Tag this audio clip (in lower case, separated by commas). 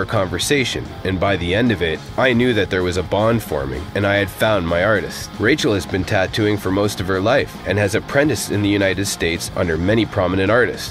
speech, music